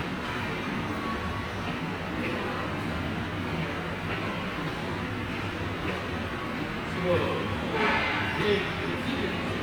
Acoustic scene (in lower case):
subway station